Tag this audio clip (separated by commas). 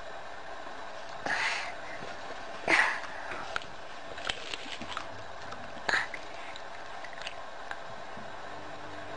people eating apple